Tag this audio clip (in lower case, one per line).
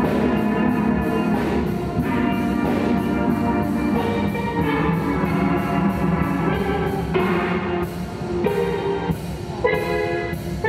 playing steelpan